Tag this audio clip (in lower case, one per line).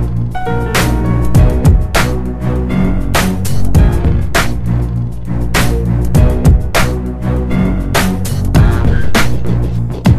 music